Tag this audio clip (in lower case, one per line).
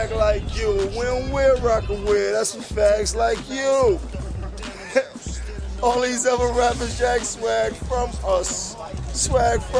speech
music